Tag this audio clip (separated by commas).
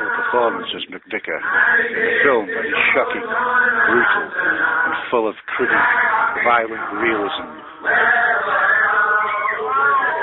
Speech